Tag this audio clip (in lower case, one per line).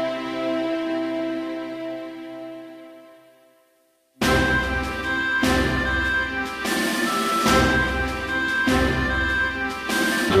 rhythm and blues
music